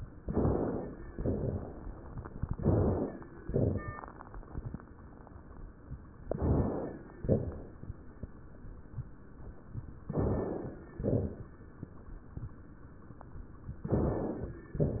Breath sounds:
Inhalation: 0.20-1.03 s, 2.42-3.25 s, 6.16-6.98 s, 10.03-10.86 s, 13.83-14.65 s
Exhalation: 1.13-1.96 s, 3.35-4.18 s, 7.11-7.93 s, 10.94-11.77 s, 14.74-15.00 s
Crackles: 1.13-1.96 s, 3.35-4.18 s, 7.11-7.93 s, 10.94-11.77 s, 14.74-15.00 s

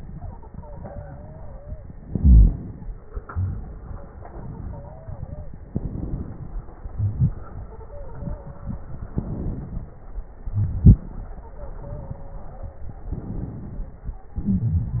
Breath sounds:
Inhalation: 2.01-3.21 s, 5.63-6.95 s, 9.10-10.42 s, 13.01-14.34 s
Exhalation: 0.00-2.00 s, 3.23-5.62 s, 6.93-9.10 s, 10.44-12.98 s, 14.34-15.00 s
Stridor: 0.50-1.84 s, 4.13-4.52 s, 4.64-5.55 s, 7.69-9.01 s, 11.56-12.88 s, 13.79-14.46 s
Crackles: 2.01-3.21 s, 5.63-6.95 s, 9.10-10.42 s

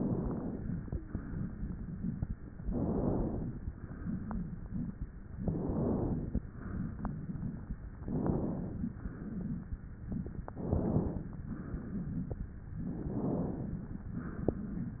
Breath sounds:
Inhalation: 0.00-0.84 s, 2.67-3.51 s, 5.45-6.40 s, 8.03-8.98 s, 10.51-11.29 s, 12.90-13.81 s
Exhalation: 1.10-2.33 s, 3.91-4.98 s, 6.64-7.71 s, 9.05-10.12 s, 11.52-12.59 s, 14.02-15.00 s

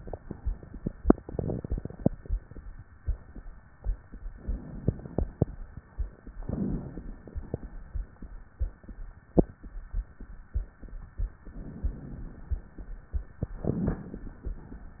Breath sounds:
Inhalation: 1.08-2.05 s, 4.44-5.41 s, 6.49-7.46 s, 11.54-12.54 s, 13.66-14.56 s
Crackles: 1.08-2.05 s, 4.44-5.41 s, 6.49-7.46 s, 13.66-14.56 s

